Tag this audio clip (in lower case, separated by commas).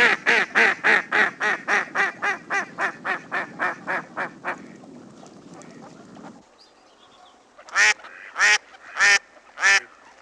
goose honking, bird, honk